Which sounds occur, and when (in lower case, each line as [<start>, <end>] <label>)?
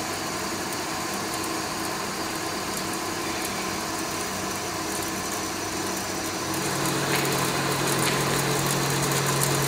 [0.00, 9.65] mechanisms